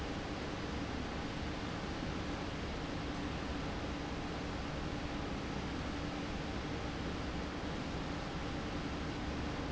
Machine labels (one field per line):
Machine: fan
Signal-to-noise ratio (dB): -6 dB